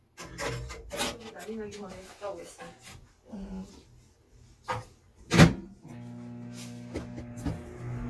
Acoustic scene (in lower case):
kitchen